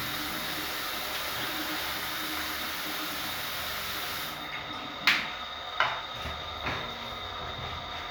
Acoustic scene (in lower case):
restroom